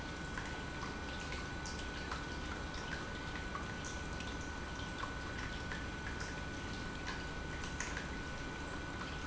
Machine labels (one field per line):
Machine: pump